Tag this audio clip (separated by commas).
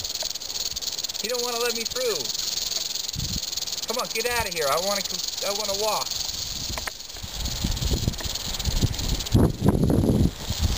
Snake